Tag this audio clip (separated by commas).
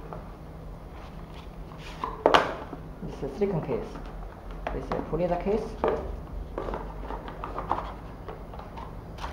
Speech